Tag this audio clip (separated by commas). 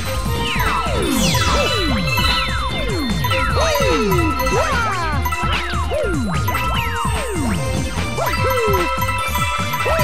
Music